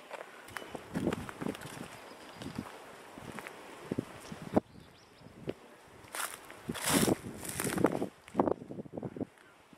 Someone walking through crunchy leaves on a windy day